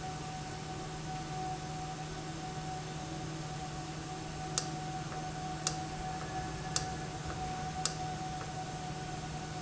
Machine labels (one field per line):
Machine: valve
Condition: normal